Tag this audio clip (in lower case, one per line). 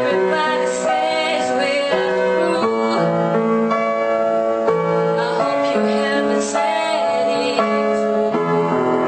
music
female singing